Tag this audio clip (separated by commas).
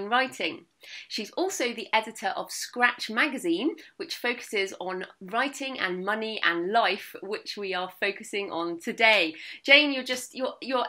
Speech